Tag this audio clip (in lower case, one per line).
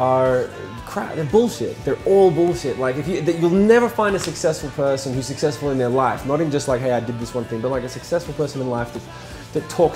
speech
music